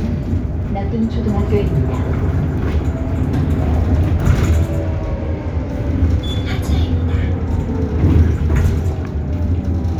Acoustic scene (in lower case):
bus